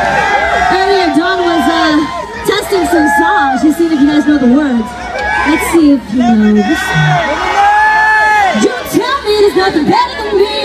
A woman is speaking through a microphone while a crowd of people are cheering on in excitement